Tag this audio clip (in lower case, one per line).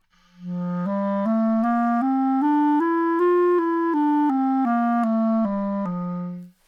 musical instrument
music
woodwind instrument